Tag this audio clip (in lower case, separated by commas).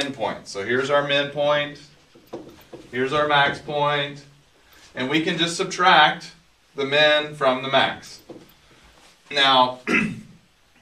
speech